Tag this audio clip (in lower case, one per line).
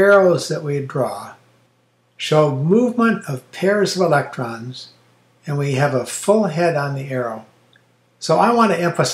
speech